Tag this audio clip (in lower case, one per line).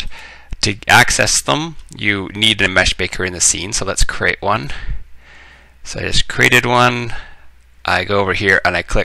speech